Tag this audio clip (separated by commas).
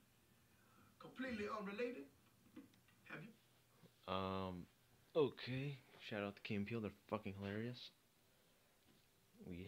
Speech